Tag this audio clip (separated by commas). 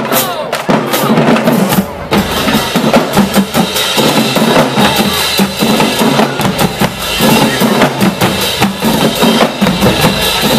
people marching